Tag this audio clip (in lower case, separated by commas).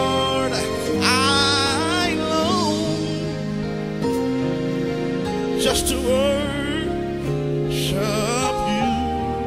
music